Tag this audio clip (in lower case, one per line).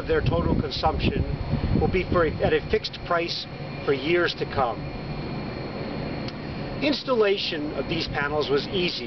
speech